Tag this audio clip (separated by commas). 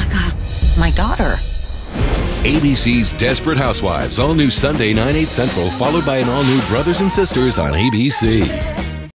Speech, Music